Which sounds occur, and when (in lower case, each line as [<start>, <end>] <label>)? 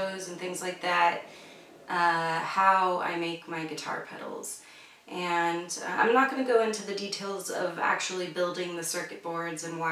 [0.00, 1.18] woman speaking
[0.00, 9.91] background noise
[1.80, 4.45] woman speaking
[5.02, 9.91] woman speaking